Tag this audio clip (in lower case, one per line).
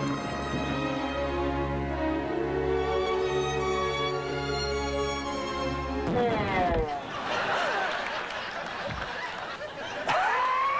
music